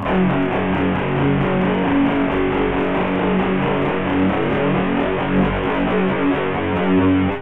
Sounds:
musical instrument
guitar
plucked string instrument
music

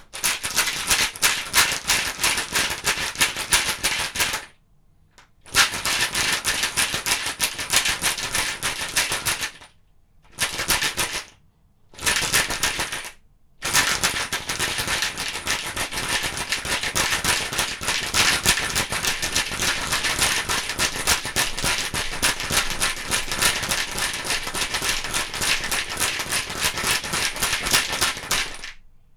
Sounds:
rattle

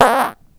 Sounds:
fart

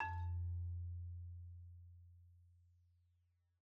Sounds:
mallet percussion
percussion
marimba
musical instrument
music

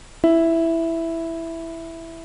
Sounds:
keyboard (musical)
piano
musical instrument
music

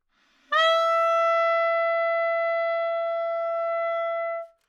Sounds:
music
woodwind instrument
musical instrument

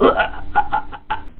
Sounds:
human voice
laughter

